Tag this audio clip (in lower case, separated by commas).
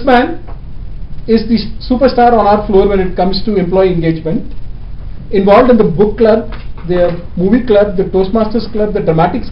male speech, speech, monologue